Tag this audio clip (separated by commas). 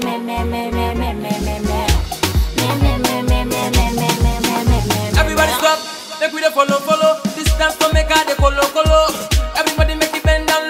Afrobeat, Music